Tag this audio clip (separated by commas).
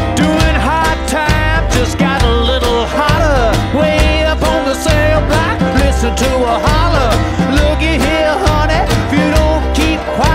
Music